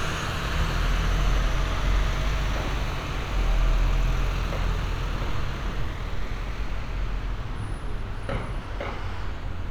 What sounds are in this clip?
large-sounding engine